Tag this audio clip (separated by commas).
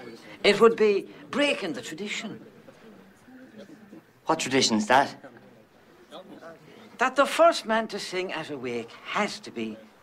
Speech